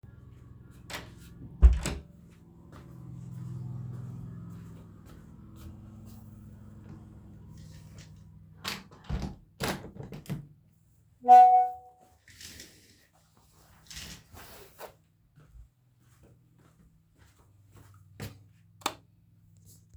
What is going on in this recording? I closed the door, walked towards the window and closed it. Closed the curtains and the switched off the lights